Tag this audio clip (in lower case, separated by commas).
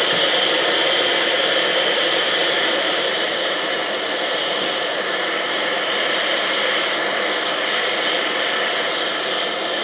vehicle, train, steam, engine